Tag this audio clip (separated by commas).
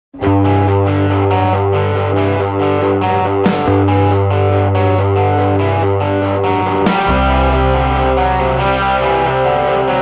Music, Electric guitar, Effects unit